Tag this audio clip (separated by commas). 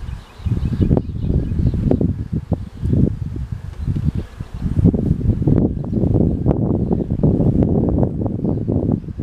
outside, rural or natural